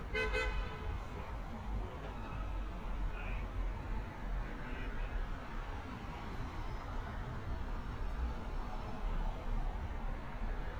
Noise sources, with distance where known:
car horn, near

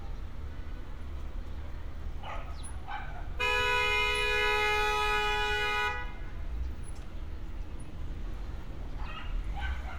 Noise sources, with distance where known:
car horn, near
dog barking or whining

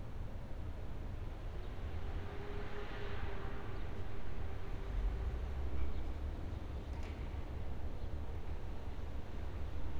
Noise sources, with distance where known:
medium-sounding engine

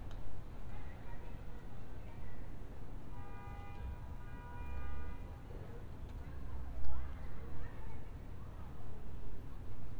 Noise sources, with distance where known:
car horn
person or small group talking

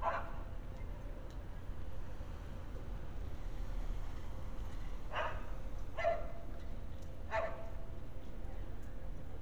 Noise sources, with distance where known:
dog barking or whining

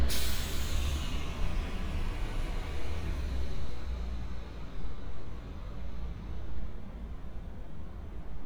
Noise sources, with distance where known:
large-sounding engine
unidentified impact machinery

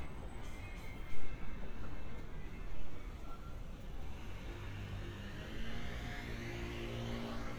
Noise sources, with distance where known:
engine of unclear size, near
music from an unclear source

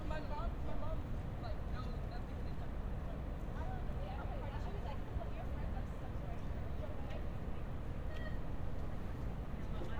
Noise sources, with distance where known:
person or small group talking, near

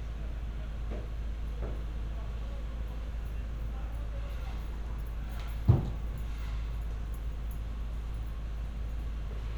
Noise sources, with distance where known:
unidentified human voice, far

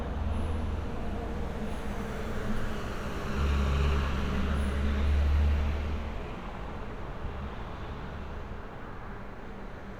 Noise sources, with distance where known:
large-sounding engine, far

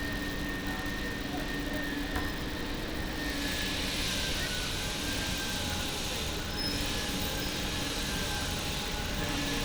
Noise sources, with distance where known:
unidentified powered saw, near

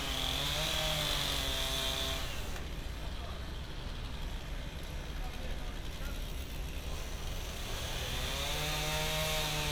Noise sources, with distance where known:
chainsaw

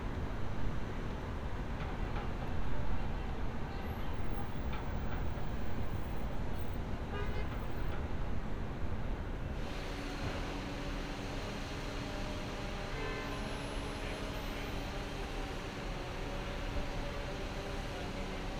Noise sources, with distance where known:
car horn

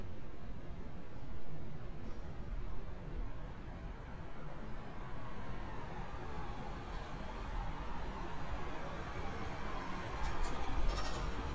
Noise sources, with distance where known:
engine of unclear size

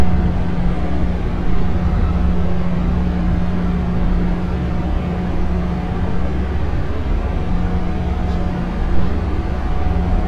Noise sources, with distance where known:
large-sounding engine, near

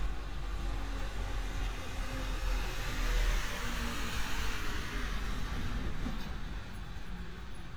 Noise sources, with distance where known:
large-sounding engine, near

